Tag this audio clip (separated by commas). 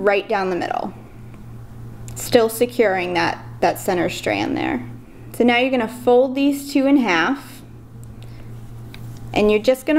Speech